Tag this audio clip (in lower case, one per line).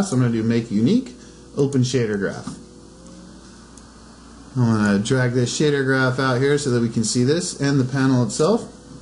speech